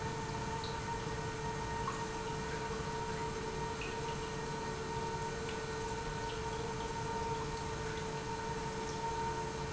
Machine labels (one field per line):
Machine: pump